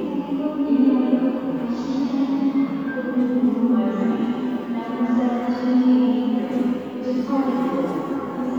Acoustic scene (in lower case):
subway station